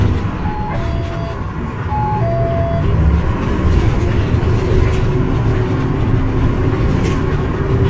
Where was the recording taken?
on a bus